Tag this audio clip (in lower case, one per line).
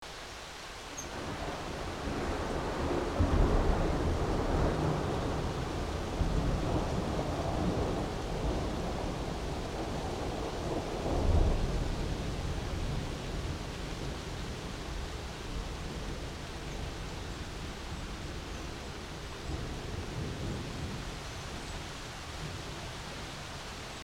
water
thunder
thunderstorm
rain